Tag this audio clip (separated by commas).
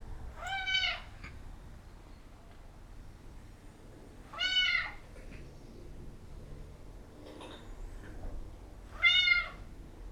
Meow, Animal, pets, Cat